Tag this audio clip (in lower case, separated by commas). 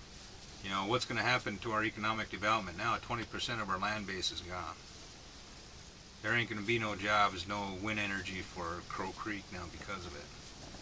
speech